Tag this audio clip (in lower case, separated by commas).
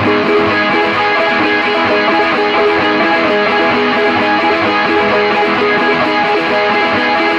music, guitar, plucked string instrument, musical instrument